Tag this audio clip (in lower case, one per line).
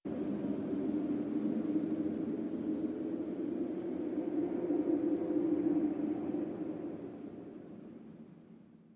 wind